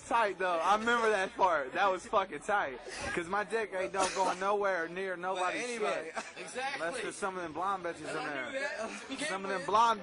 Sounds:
Speech

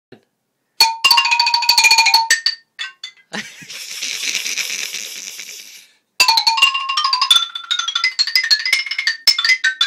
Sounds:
Music, Percussion, xylophone, Musical instrument

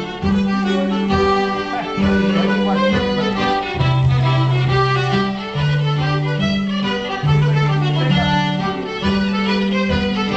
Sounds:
Speech, Violin, Musical instrument, Bowed string instrument, Music

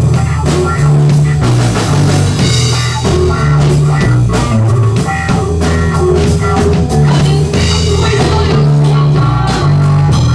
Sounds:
Psychedelic rock, Guitar, Rock music, Music

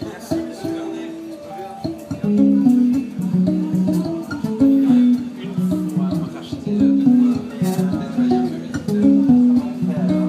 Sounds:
Speech, Music

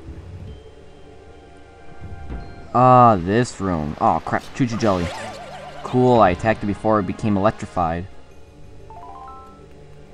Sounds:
Speech

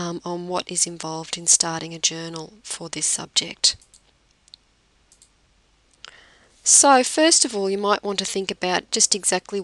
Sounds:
Speech

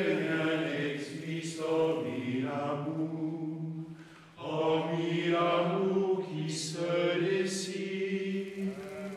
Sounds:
Chant

